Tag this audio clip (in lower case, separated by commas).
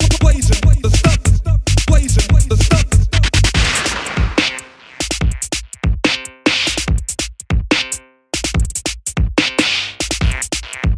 music, house music, drum and bass, electronic music, dubstep